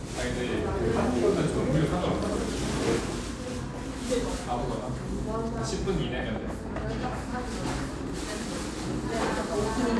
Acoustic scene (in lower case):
cafe